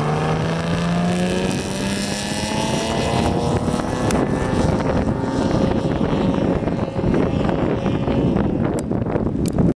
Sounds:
vibration
motorboat
boat
vehicle

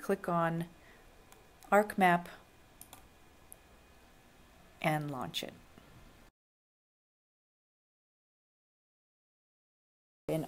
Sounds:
speech

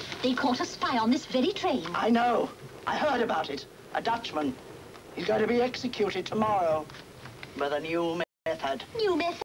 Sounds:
speech

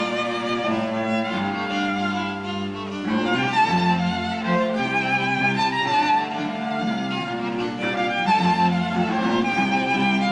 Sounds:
music
fiddle
string section
classical music
bowed string instrument
orchestra
musical instrument

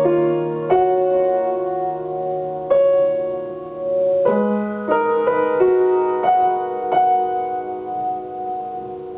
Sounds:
music

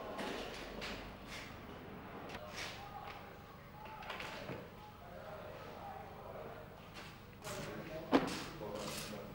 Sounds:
speech

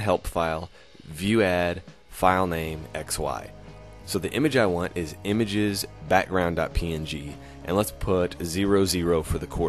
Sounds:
speech

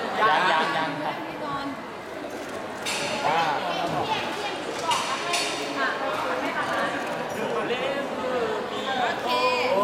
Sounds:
speech

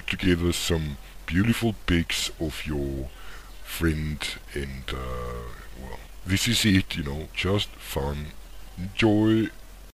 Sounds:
speech

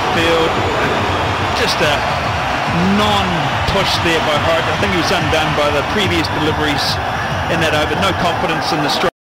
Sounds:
speech

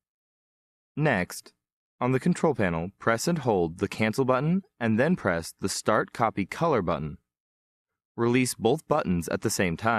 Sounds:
speech

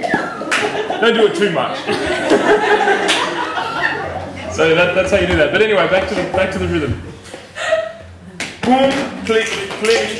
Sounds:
percussion
speech

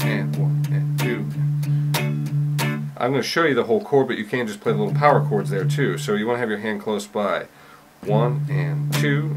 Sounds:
speech
electric guitar
guitar
music
plucked string instrument
strum
musical instrument

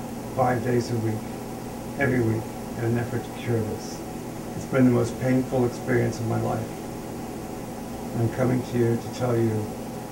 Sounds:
speech

